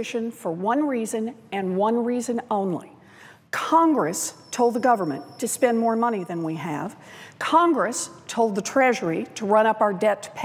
A woman speaking